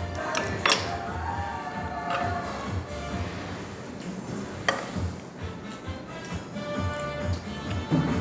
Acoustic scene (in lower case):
restaurant